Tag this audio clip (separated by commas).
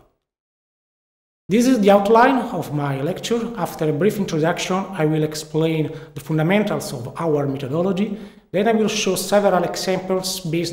Speech